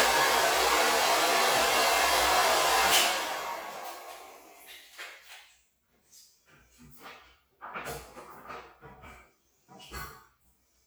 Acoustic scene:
restroom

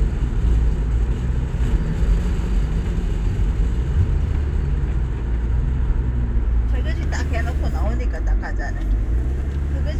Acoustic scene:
car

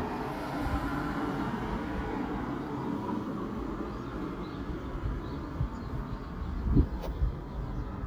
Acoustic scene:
residential area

